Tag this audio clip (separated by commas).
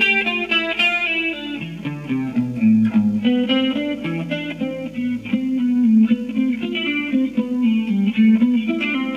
Guitar, Electric guitar, Music, Plucked string instrument, Musical instrument